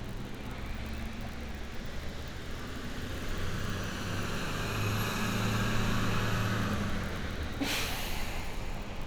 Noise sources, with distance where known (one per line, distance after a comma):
large-sounding engine, near